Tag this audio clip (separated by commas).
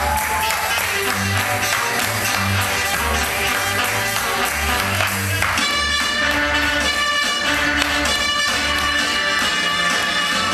Music